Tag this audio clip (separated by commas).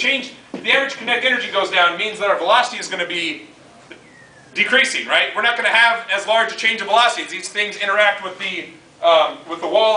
Speech